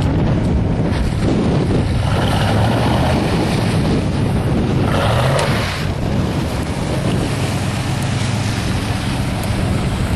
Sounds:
truck, vehicle, outside, rural or natural

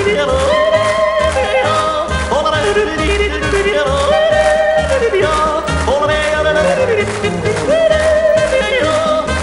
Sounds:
yodelling

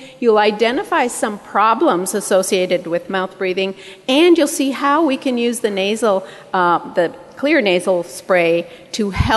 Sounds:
speech

